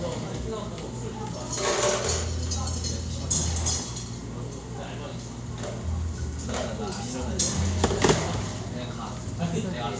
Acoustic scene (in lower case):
cafe